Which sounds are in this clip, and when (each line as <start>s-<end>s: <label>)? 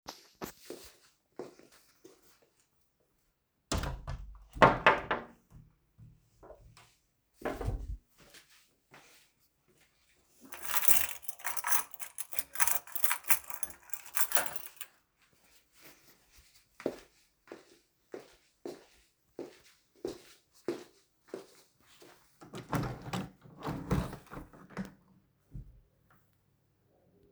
0.7s-1.6s: footsteps
3.7s-5.4s: door
7.4s-8.1s: door
8.2s-9.6s: footsteps
10.4s-15.0s: keys
16.7s-22.3s: footsteps
22.6s-25.0s: window